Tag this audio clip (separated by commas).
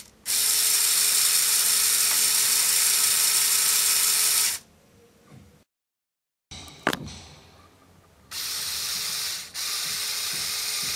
Tools